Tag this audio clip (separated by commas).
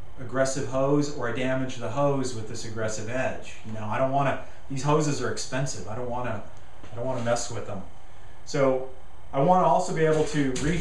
Speech